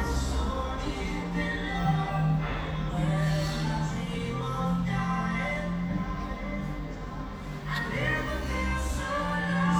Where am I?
in a cafe